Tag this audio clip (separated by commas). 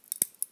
Crack, Crackle